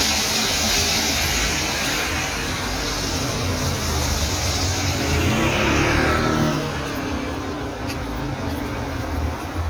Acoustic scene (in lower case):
street